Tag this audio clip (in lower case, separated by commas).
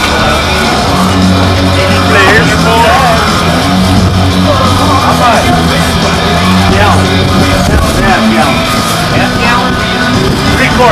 speech, music